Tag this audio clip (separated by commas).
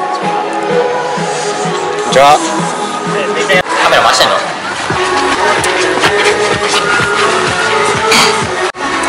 people shuffling